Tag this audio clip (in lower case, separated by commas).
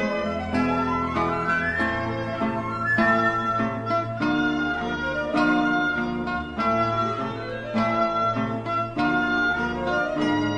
keyboard (musical), piano